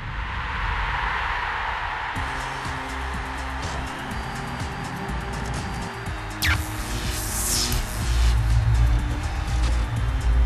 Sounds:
music

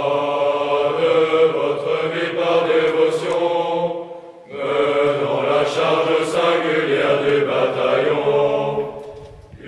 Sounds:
mantra

